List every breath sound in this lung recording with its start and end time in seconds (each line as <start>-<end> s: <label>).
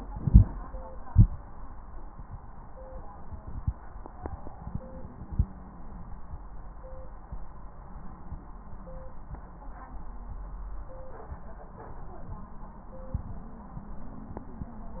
0.13-0.47 s: inhalation
1.06-1.41 s: exhalation
4.69-6.09 s: wheeze